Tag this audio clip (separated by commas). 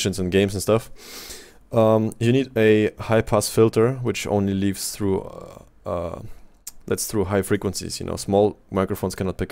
Speech